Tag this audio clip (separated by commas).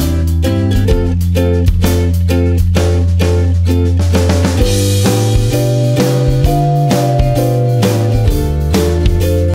Music